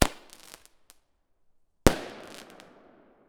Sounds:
Explosion, Fireworks

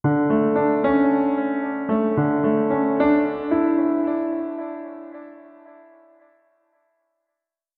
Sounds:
Keyboard (musical), Musical instrument, Music, Piano

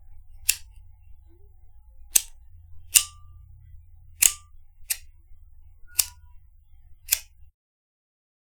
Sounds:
Fire

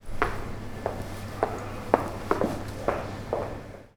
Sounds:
footsteps

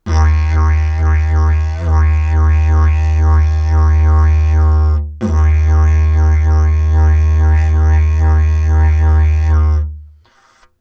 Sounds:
Musical instrument, Music

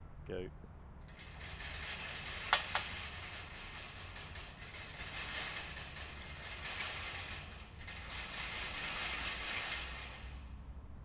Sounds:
Rattle

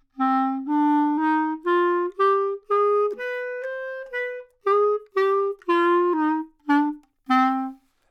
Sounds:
Music, Musical instrument, woodwind instrument

